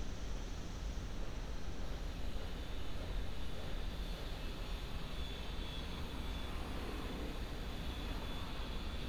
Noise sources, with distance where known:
background noise

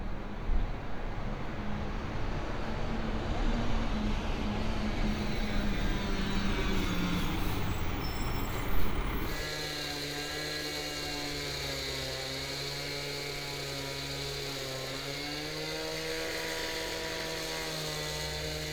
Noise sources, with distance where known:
unidentified powered saw

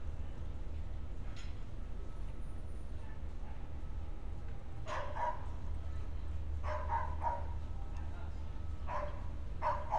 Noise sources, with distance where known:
person or small group talking; dog barking or whining, far

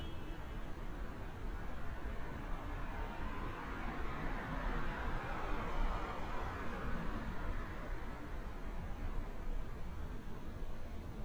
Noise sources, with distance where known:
car horn, far

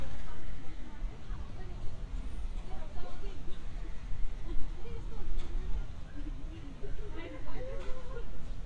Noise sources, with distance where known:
person or small group talking, far

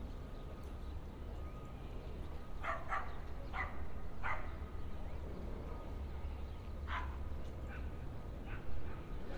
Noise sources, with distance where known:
dog barking or whining, far

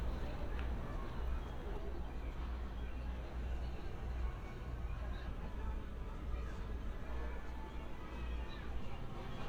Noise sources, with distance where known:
background noise

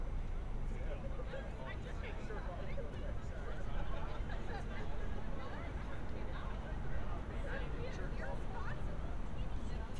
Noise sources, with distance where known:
person or small group talking, near

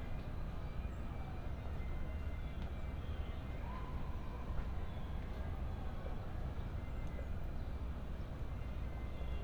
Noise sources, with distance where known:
siren, far; music from an unclear source

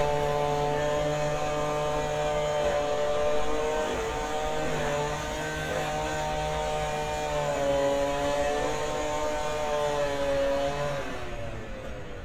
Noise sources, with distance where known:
unidentified powered saw

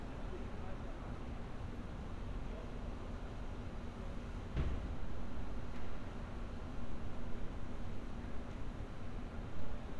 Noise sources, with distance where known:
person or small group talking, far

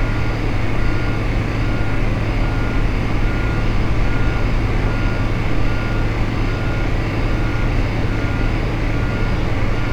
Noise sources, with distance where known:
reverse beeper, far

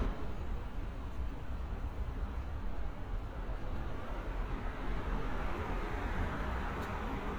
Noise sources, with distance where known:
medium-sounding engine, far

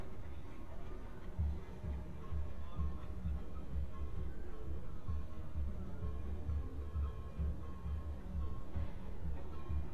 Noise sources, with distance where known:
music from an unclear source, far

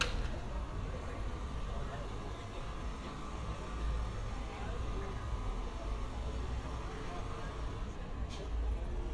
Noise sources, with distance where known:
person or small group talking

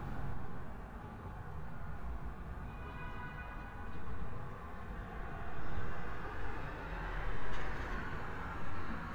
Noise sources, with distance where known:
car horn, far

